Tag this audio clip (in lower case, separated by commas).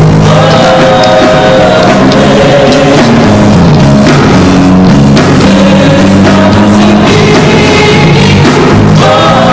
male singing, female singing, music